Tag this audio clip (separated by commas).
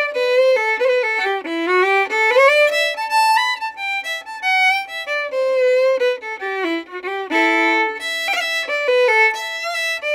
Violin, Musical instrument, Music